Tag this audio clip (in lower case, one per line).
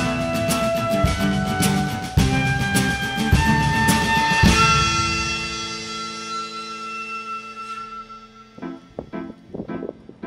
music
acoustic guitar